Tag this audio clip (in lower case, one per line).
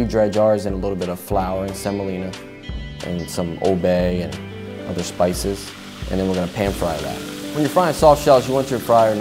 frying (food)